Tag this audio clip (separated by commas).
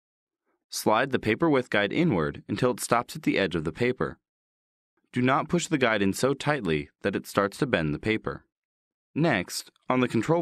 Speech